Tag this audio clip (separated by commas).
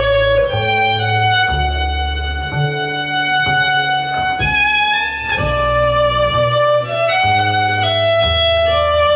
Violin, Music, Musical instrument